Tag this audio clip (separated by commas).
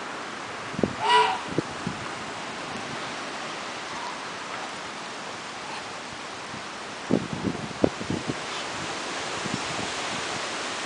Chicken